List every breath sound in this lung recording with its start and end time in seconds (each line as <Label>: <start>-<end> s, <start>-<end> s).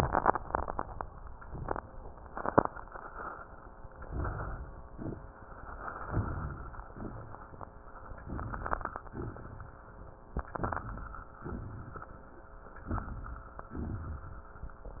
Inhalation: 3.99-4.89 s, 6.08-6.92 s, 8.20-9.10 s, 10.46-11.39 s, 12.80-13.74 s
Exhalation: 4.89-5.67 s, 6.92-8.01 s, 9.10-10.21 s, 11.40-12.58 s, 13.74-14.63 s
Crackles: 6.07-6.89 s, 6.91-8.00 s